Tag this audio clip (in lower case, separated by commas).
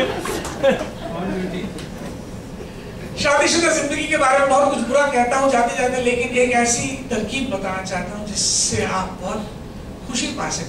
people sniggering, snicker, speech